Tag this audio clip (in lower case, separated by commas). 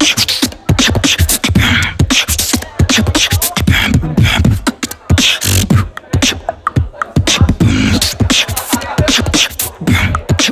beat boxing